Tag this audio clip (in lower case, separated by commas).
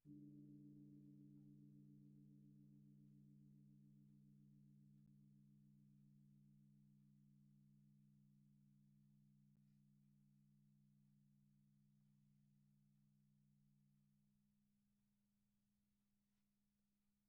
music, gong, percussion, musical instrument